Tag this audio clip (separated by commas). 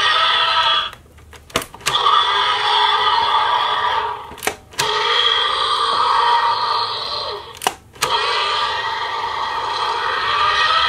dinosaurs bellowing